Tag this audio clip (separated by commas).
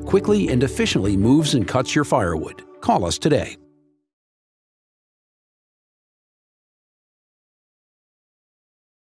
Music, Speech